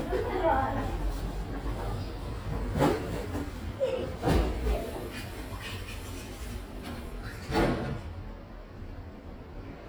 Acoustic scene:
elevator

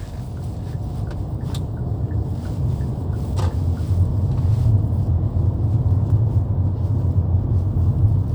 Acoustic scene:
car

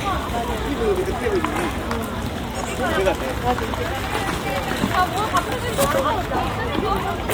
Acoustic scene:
park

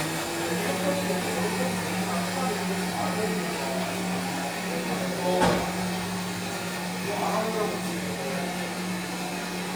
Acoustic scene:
cafe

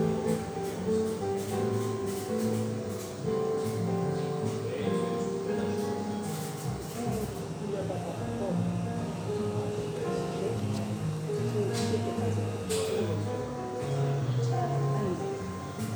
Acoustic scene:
cafe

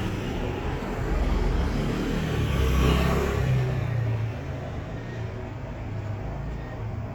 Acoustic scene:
street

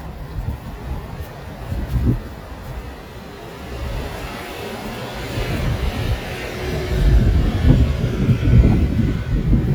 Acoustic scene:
street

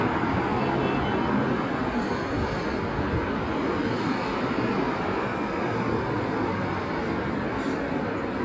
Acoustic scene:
street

